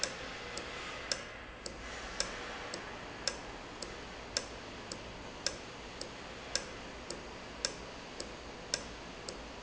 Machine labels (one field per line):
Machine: valve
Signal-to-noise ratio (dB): 0 dB